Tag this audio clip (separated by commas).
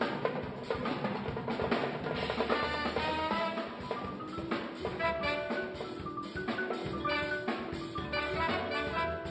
Percussion, Music